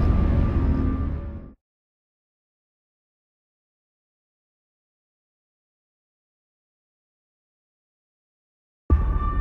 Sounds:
Sound effect

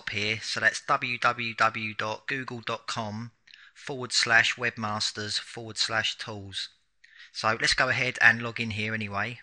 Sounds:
Speech

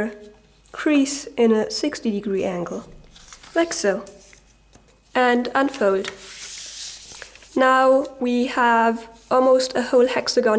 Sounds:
Speech

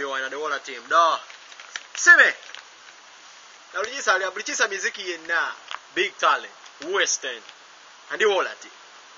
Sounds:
Speech

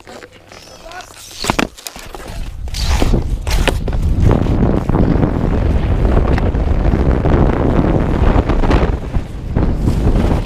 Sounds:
Wind noise (microphone), wind noise, Speech

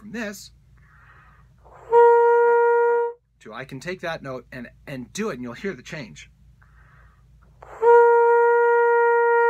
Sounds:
Brass instrument

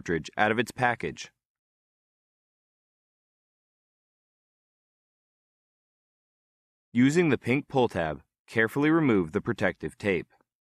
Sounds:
Speech

